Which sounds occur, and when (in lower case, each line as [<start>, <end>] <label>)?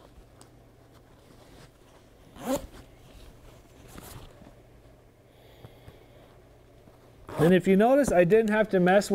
[0.01, 9.14] background noise
[2.29, 2.75] zipper (clothing)
[7.14, 7.58] zipper (clothing)
[7.58, 9.14] male speech